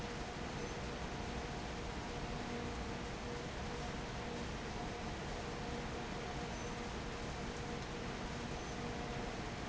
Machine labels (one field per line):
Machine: fan